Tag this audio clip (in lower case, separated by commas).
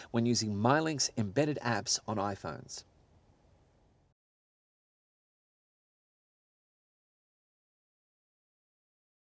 speech